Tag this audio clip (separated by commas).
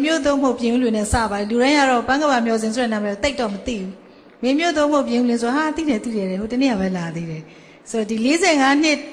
Speech